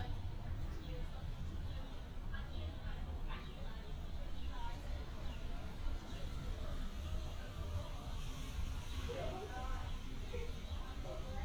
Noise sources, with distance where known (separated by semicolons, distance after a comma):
person or small group talking, far